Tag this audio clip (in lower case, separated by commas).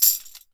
percussion, music, musical instrument, tambourine